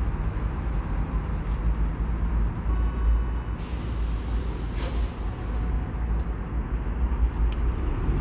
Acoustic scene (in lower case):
residential area